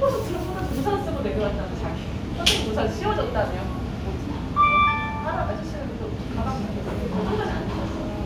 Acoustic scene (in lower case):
cafe